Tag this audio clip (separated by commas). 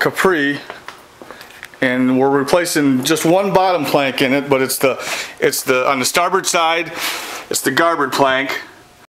Speech